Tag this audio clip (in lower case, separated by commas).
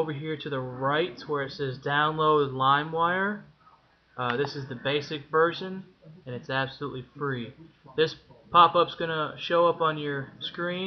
speech